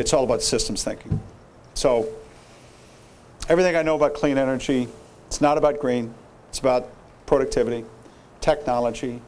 A man gives a speech